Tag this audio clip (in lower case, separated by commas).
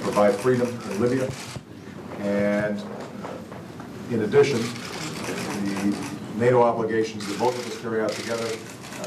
speech